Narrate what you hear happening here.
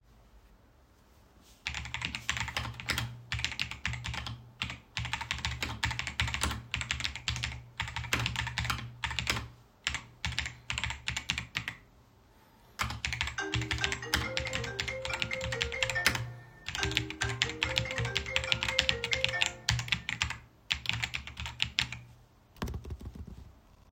While I was typing on the keyboard throughout the whole recording my phone rang, then the call ended.